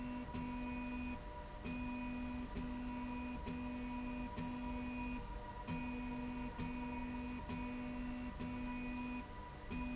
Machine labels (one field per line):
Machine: slide rail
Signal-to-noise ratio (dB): 6 dB